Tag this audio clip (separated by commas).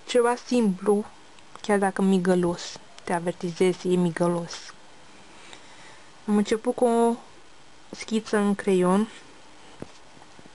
Speech